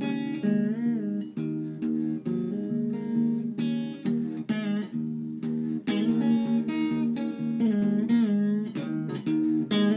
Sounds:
strum, music, plucked string instrument, guitar, musical instrument

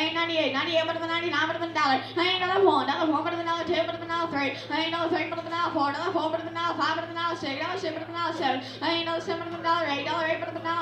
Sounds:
speech

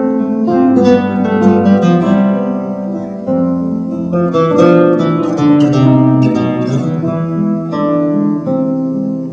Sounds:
plucked string instrument, strum, music, musical instrument, guitar, acoustic guitar

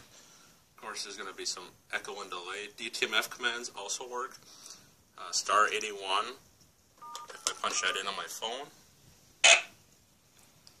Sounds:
telephone

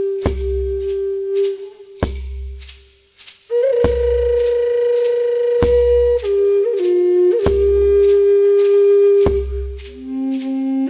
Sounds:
music

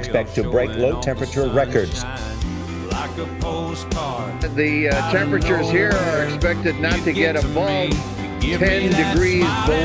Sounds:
music, speech

